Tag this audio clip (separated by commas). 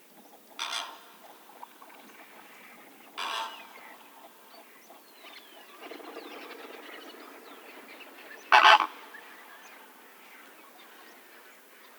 Animal, Fowl, livestock